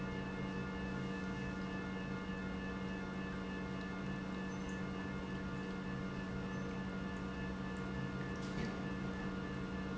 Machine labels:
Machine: pump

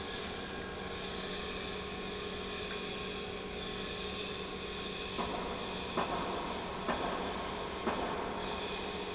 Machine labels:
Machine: pump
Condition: normal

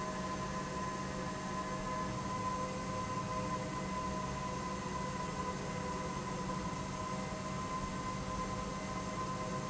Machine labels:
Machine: pump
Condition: normal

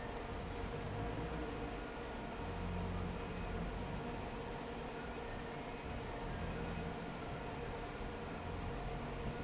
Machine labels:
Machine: fan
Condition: normal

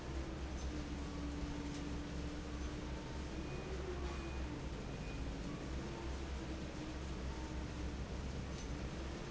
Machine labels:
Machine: fan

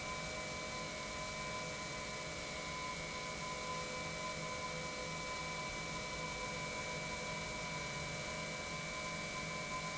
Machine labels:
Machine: pump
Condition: normal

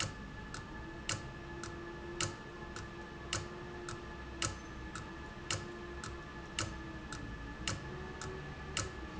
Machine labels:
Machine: valve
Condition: abnormal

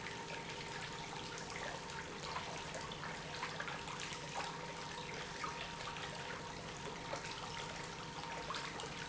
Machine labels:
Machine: pump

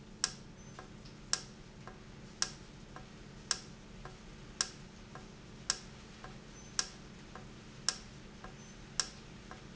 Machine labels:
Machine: valve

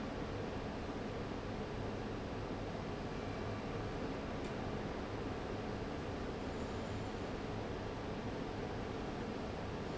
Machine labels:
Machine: fan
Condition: abnormal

